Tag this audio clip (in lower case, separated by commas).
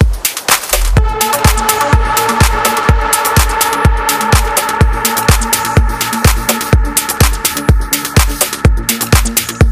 music